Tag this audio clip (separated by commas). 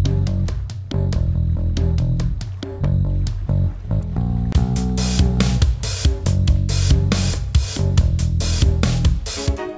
Music